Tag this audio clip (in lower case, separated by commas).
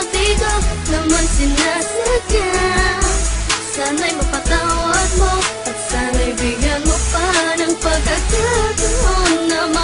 music